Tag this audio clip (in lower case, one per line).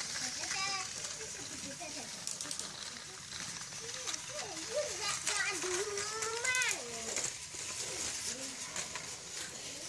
inside a small room
speech
kid speaking
train